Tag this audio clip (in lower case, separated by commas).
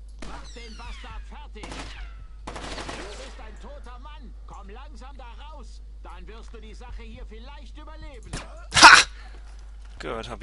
gunshot, speech